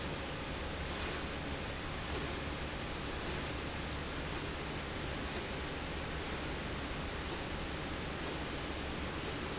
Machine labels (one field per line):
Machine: slide rail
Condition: normal